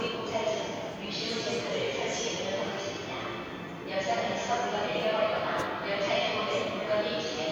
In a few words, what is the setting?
subway station